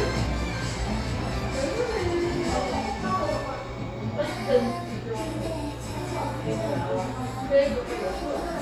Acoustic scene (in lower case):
cafe